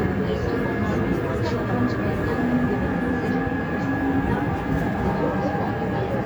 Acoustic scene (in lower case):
subway train